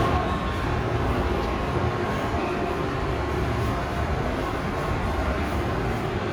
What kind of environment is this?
subway station